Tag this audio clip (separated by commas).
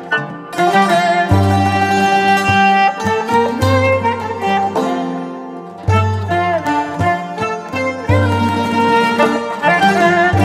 Pizzicato